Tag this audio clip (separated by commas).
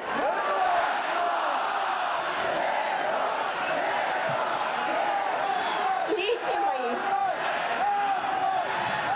people cheering